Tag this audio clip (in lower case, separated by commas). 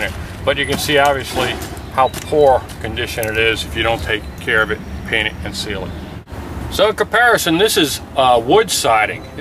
speech